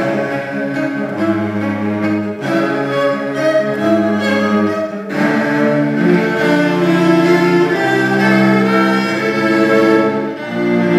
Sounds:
music, bowed string instrument, musical instrument, string section, cello

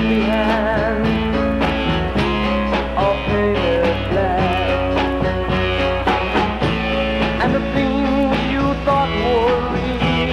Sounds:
music

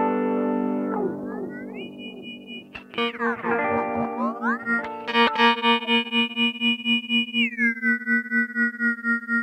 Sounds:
plucked string instrument, musical instrument, synthesizer, effects unit, guitar, music

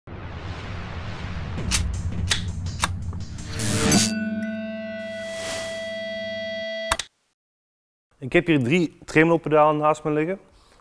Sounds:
music, speech, musical instrument

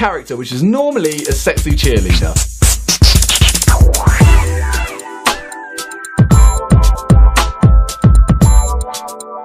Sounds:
speech, music

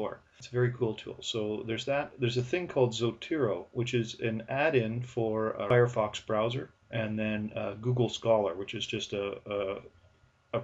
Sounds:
speech

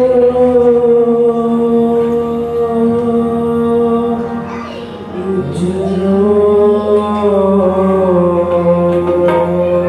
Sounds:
mantra

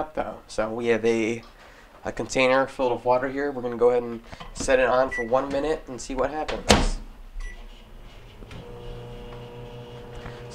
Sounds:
speech

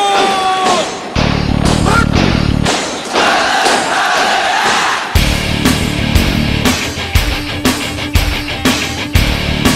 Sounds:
people marching

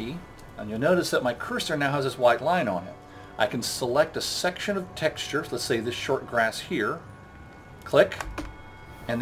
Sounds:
music, speech

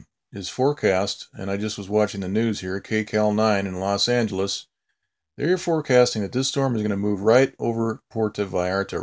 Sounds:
speech

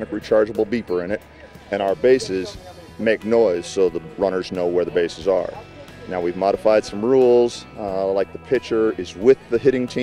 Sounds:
speech, music

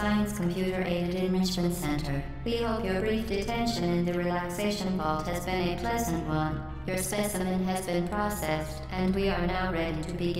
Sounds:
speech, music

